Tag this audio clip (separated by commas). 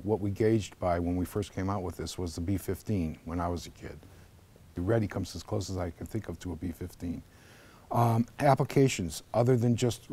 Speech